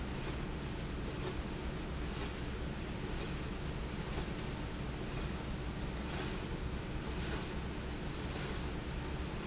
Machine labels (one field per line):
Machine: slide rail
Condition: normal